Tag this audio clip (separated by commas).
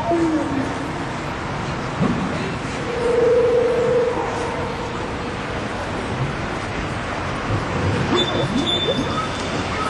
Chirp, Speech, Bird